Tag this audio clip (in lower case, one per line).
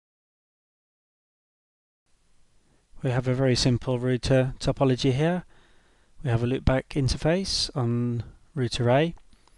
speech